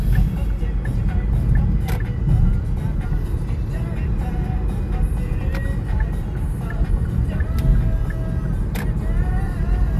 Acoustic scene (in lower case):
car